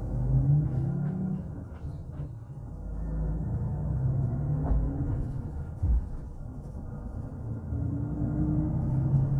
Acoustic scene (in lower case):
bus